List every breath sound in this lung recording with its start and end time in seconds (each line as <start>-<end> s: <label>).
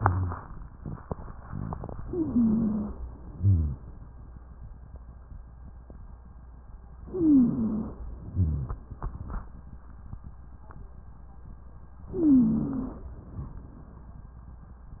0.00-0.34 s: rhonchi
2.01-2.96 s: inhalation
2.01-2.96 s: wheeze
3.38-3.76 s: rhonchi
7.06-7.97 s: inhalation
7.06-7.97 s: wheeze
8.33-8.82 s: rhonchi
12.14-13.05 s: inhalation
12.14-13.05 s: wheeze